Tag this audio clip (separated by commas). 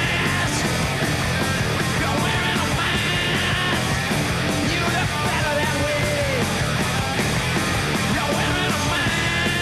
Music